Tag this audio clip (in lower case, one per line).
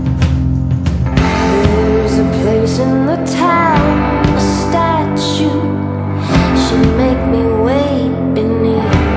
music